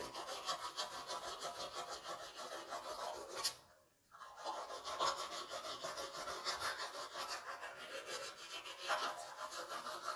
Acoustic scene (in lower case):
restroom